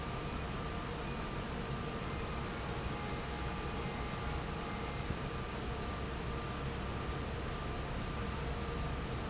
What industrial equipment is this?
fan